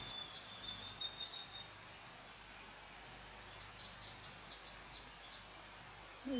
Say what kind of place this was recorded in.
park